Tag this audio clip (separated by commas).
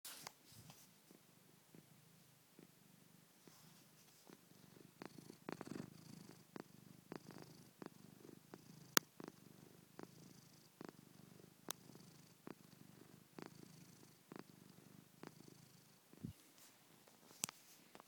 Cat, Domestic animals, Purr, Animal